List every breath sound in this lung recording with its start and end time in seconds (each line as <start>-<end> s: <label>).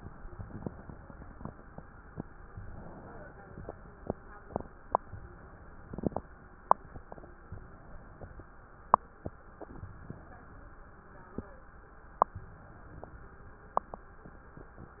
2.51-3.71 s: inhalation
5.02-6.09 s: inhalation
7.47-8.54 s: inhalation
9.71-10.77 s: inhalation
12.37-13.43 s: inhalation